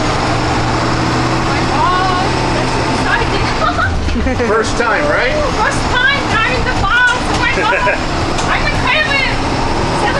A high frequency rumble from a bus in the background followed by a woman saying something excitedly and a man responding to her